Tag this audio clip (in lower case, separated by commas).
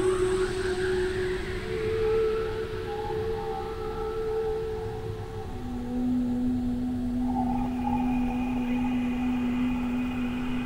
music, ambient music